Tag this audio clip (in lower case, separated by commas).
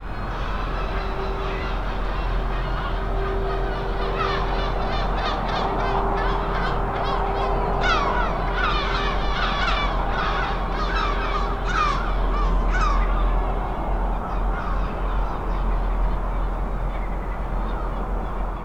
wild animals, seagull, animal, bird, crow